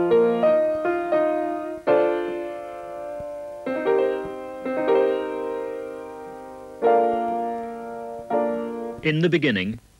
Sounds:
Music, Speech

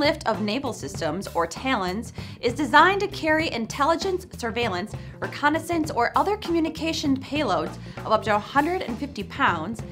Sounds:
Music, Speech

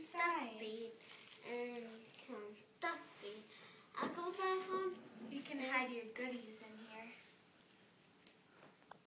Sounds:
Speech

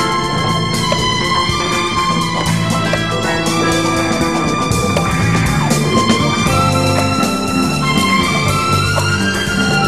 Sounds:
Music, Jingle (music)

